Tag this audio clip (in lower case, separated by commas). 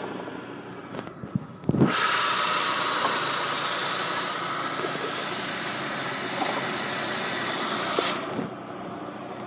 engine